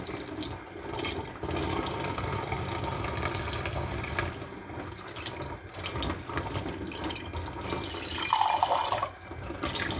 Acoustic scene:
kitchen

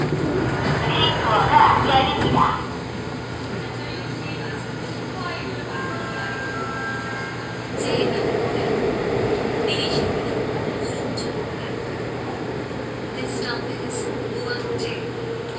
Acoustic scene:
subway train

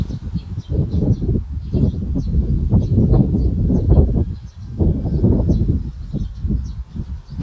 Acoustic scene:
park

